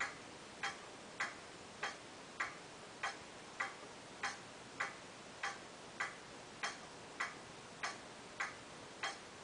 A clock is ticking quietly